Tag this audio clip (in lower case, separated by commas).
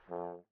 musical instrument, music, brass instrument